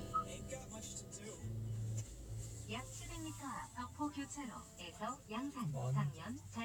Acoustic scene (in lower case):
car